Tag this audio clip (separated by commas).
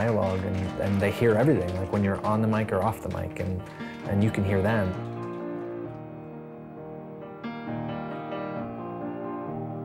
Speech, Music